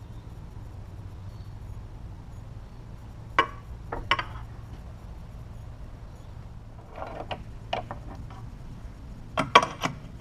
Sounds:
tools

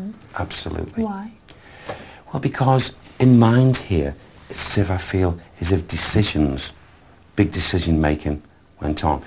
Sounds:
speech

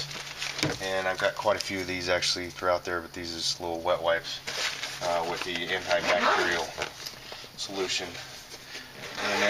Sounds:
speech

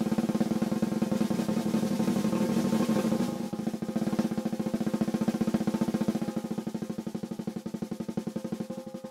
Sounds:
drum kit
musical instrument
music
drum

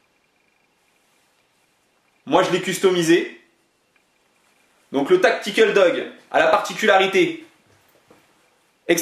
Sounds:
speech

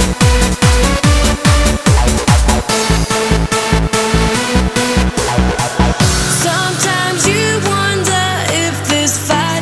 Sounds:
techno

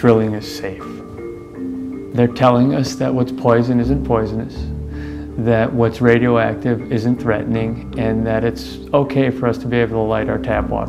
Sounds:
music
speech

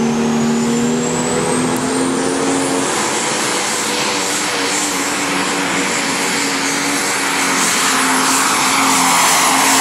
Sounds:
vehicle
truck

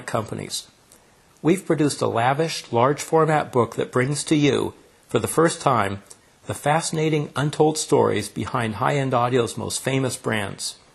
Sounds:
speech

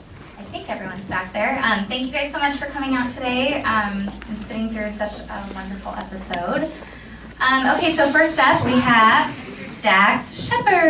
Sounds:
speech

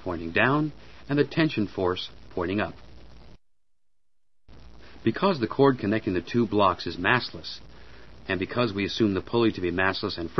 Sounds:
speech

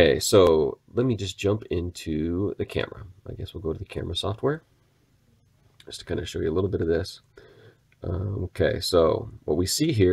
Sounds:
speech

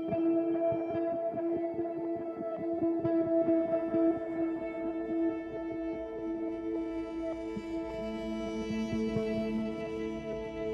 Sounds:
music
background music

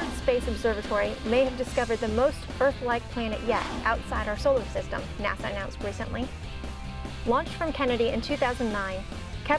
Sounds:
speech
music

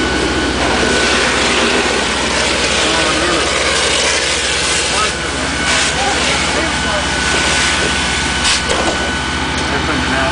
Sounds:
speech

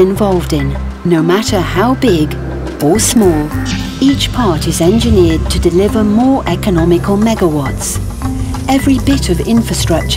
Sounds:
speech
music

